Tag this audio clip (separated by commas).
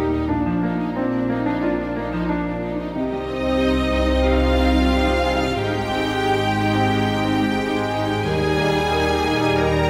Music